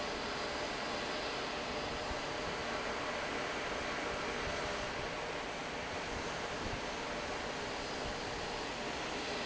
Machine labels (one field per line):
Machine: fan